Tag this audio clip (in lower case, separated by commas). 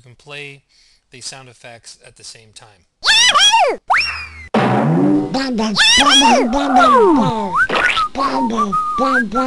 speech, sound effect